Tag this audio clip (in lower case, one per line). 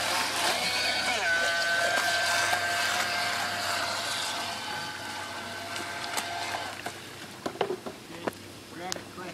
speedboat
speech